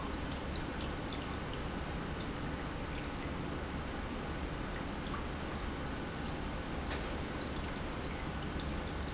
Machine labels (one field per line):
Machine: pump